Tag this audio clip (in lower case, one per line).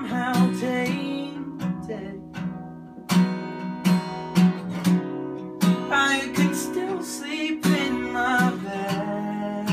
music